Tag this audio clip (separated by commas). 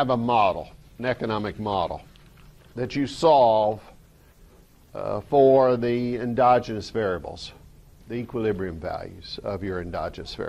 Speech